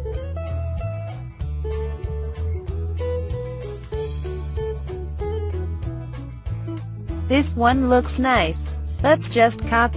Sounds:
music, speech, narration, female speech

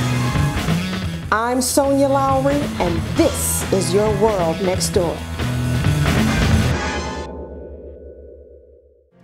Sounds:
music, speech

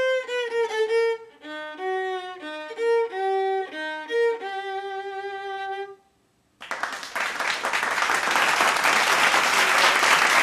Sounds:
music, musical instrument, violin

